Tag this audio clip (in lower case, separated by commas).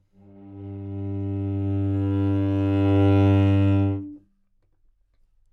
music, bowed string instrument, musical instrument